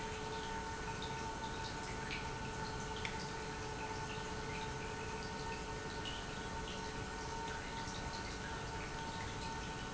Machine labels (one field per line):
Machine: pump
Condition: normal